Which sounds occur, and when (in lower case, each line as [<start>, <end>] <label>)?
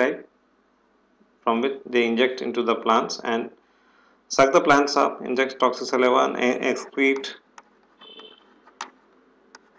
[0.00, 0.25] man speaking
[1.45, 3.57] man speaking
[4.23, 7.43] man speaking
[7.57, 7.66] generic impact sounds
[7.94, 8.69] foghorn
[8.79, 9.02] generic impact sounds
[9.56, 9.75] generic impact sounds